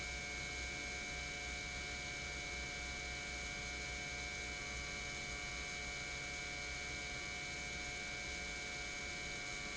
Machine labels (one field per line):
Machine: pump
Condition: normal